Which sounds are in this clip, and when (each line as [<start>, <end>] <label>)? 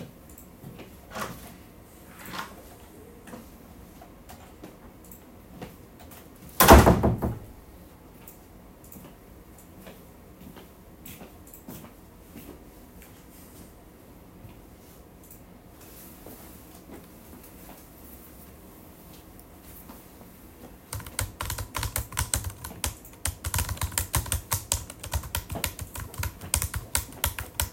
[1.02, 6.48] footsteps
[1.08, 2.69] door
[6.46, 7.61] door
[8.12, 20.53] footsteps
[20.78, 27.72] keyboard typing